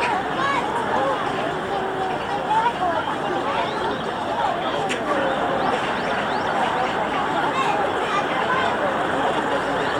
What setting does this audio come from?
park